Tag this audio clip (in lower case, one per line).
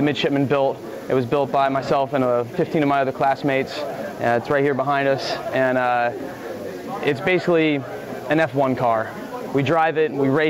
speech